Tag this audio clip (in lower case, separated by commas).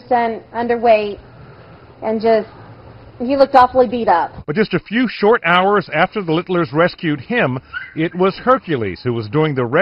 domestic animals, speech